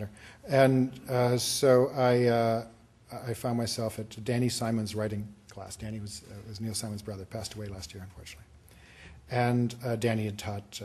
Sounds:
Speech

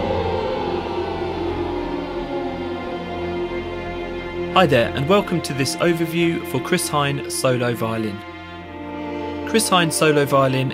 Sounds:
Music, Musical instrument, Speech, Violin

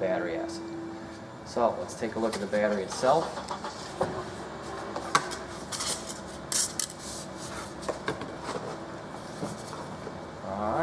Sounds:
Speech

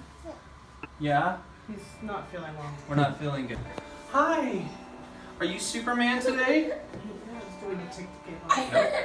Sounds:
Speech, Music, Baby cry

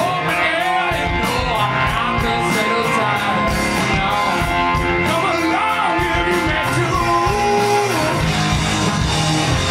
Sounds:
Music

